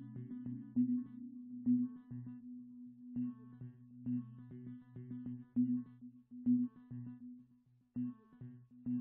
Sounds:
music

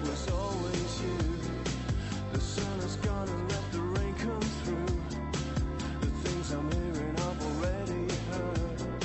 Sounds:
music

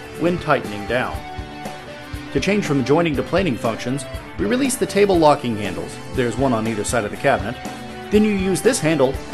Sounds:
planing timber

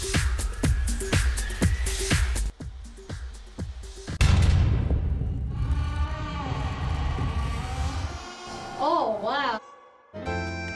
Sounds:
speech
music

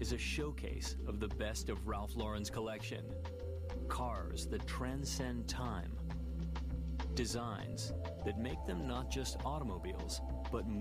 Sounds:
music
speech

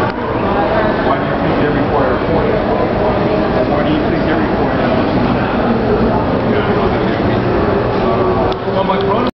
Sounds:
vehicle
speech
motor vehicle (road)
car

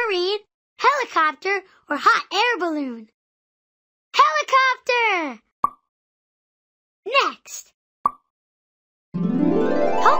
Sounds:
music
speech

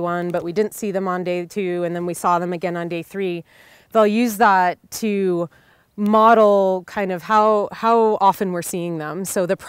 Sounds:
speech

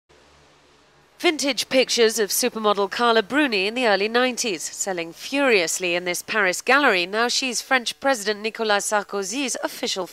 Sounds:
speech

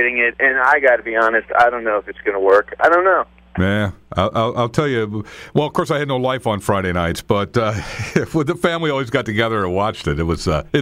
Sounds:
radio
speech

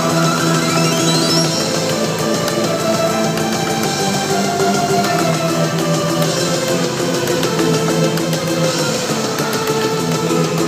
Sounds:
music

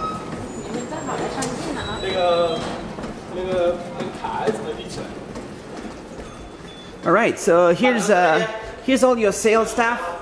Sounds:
speech

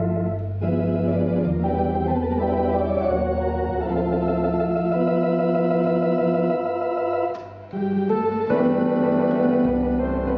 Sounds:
electronic organ
hammond organ
organ

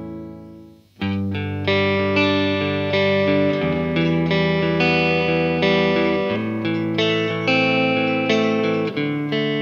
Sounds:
strum
plucked string instrument
musical instrument
bass guitar
electric guitar
guitar
music

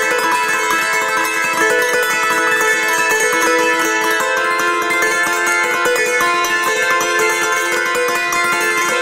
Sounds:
playing zither

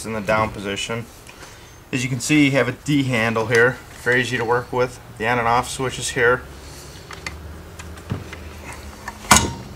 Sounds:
speech

